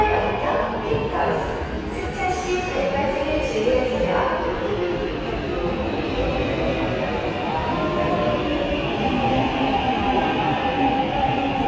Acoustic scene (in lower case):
subway station